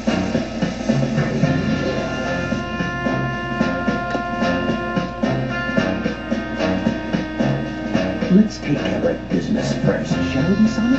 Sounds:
Speech, Music

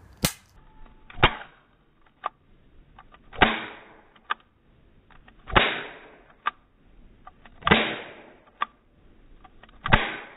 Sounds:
cap gun shooting

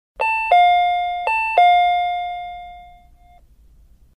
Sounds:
Doorbell

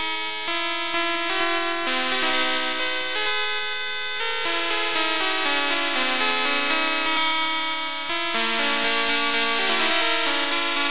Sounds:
Theme music, Music

